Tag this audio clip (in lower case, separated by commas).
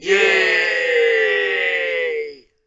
human group actions, cheering